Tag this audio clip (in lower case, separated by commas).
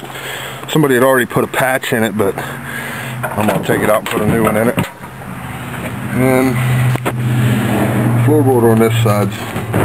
speech